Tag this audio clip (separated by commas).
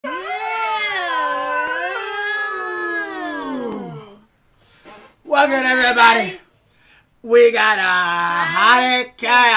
Speech, inside a small room